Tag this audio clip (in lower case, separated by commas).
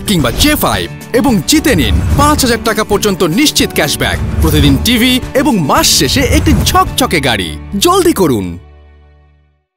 speech, music